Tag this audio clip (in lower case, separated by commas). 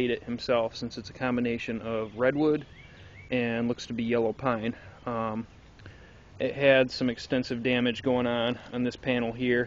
speech